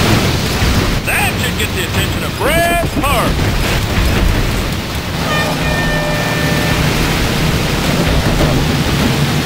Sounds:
Speech

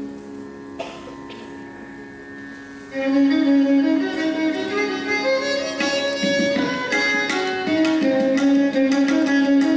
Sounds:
Violin, Musical instrument, Music

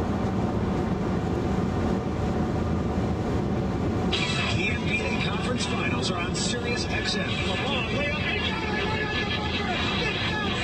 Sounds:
Speech, Vehicle

